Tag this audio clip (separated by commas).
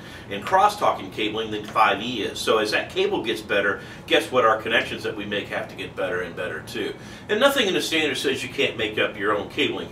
Speech